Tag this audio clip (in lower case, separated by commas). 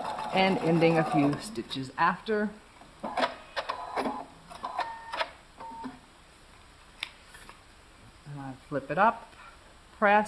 inside a small room, speech